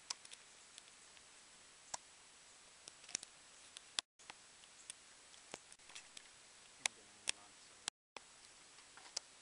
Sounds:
Speech

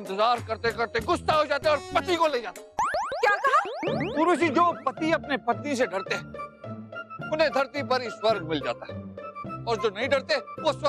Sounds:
Boing, Speech, Music

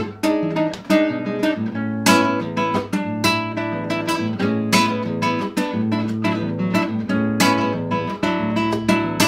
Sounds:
Electric guitar, Acoustic guitar, Strum, Music, Guitar, Plucked string instrument, Musical instrument

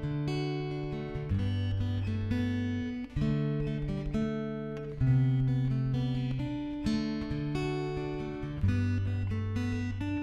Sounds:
Guitar, Plucked string instrument, playing acoustic guitar, Strum, Musical instrument, Acoustic guitar, Music

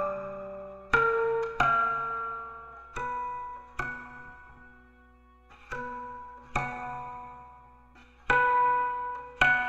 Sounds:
Music, Musical instrument, Plucked string instrument

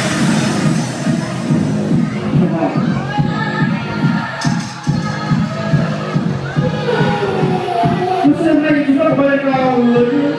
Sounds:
Disco, Music, Speech

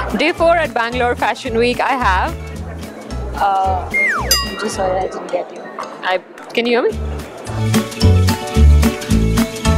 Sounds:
Speech, Music

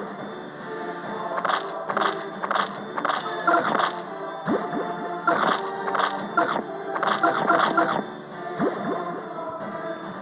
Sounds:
Music

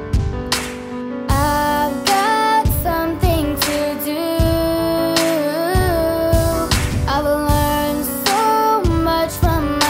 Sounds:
Rhythm and blues, Blues, Music

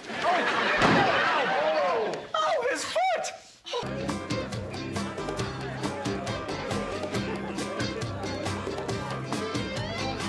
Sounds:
Music, Speech, Sound effect

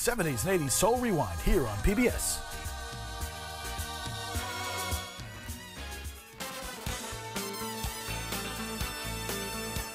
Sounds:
Speech, Music

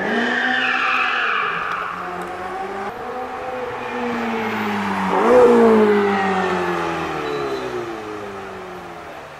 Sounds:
skidding

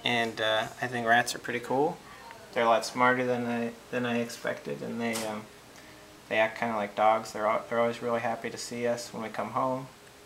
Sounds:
Speech

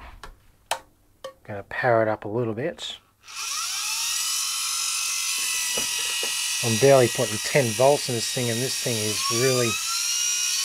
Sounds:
Speech

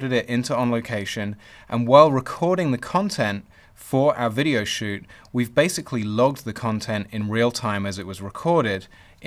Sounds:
Speech, man speaking

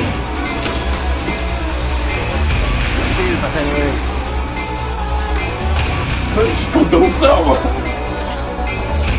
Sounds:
Music, Speech

